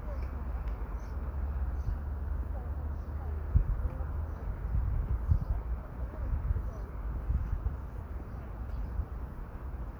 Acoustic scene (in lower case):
park